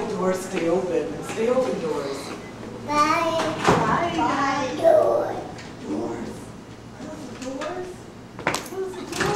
A child and mother are speaking